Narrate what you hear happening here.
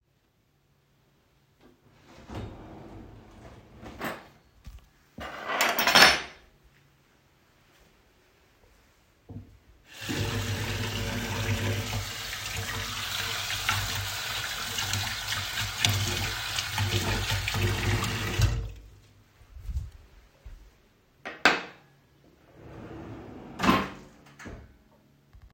The device was placed in the kitchen. I opened and closed a drawer, handled cutlery, and briefly turned on running water.